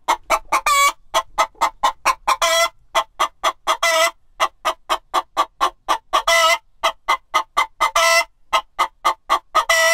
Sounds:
Fowl, Chicken, chicken clucking, Cluck, Sound effect

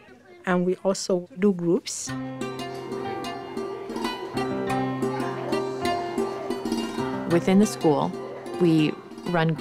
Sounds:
Mandolin, Speech, Music

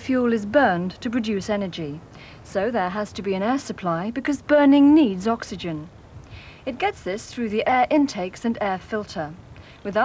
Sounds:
Speech

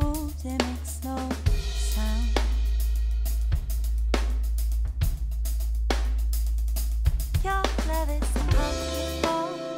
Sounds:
Cymbal, Hi-hat

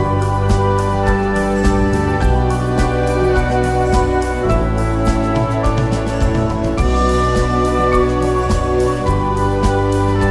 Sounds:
Music

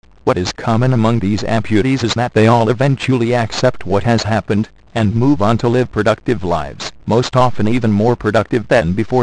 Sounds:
Speech, Speech synthesizer

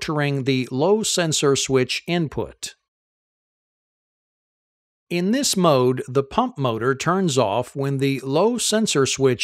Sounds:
Speech

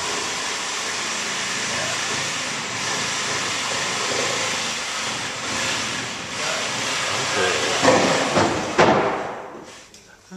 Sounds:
Wood, Speech

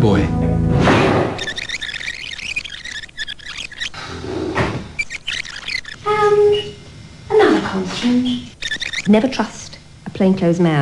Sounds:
Speech, Music, inside a small room

